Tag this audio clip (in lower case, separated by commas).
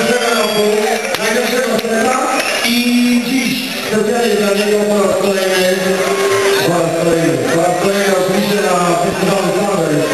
speech